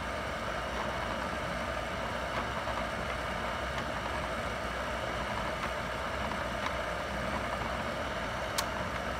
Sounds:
Printer

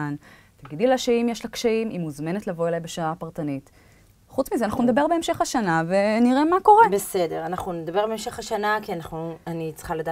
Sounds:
Conversation, Speech

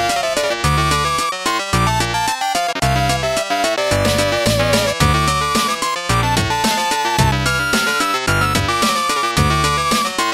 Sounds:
Music

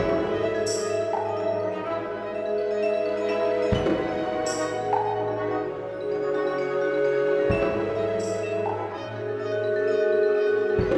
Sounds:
Percussion

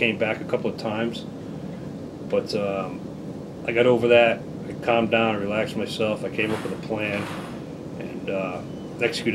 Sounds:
Speech

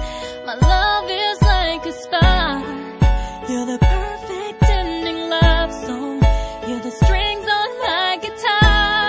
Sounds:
Music

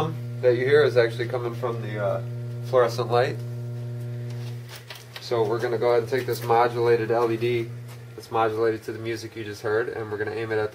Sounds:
Speech

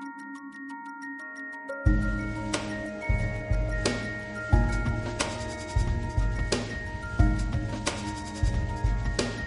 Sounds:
Music, Electronic music

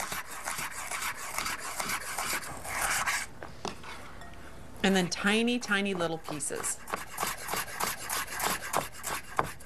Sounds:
Speech

